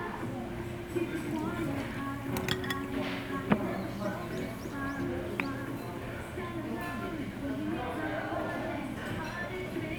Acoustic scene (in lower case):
restaurant